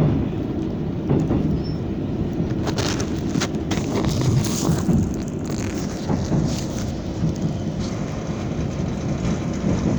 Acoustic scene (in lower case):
subway train